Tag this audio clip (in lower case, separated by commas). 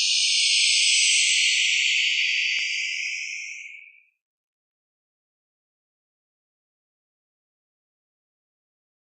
sound effect